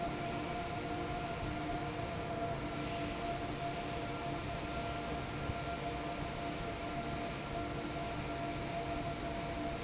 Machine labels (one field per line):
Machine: fan